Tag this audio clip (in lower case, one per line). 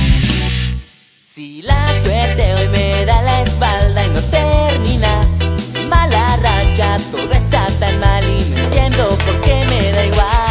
music